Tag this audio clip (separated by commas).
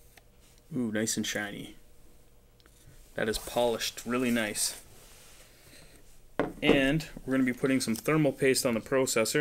Speech, inside a small room